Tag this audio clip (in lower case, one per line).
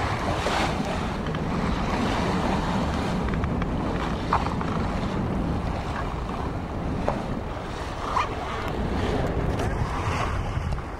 wind noise (microphone)
boat
ocean
sailing ship
wind